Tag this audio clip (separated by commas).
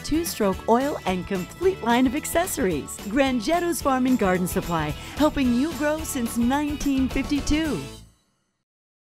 Speech, Music